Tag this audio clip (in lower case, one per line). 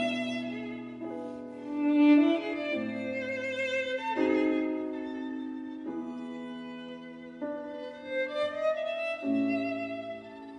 cello
fiddle
music